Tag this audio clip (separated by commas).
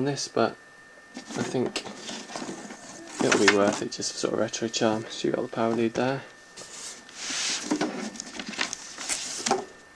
Speech, inside a small room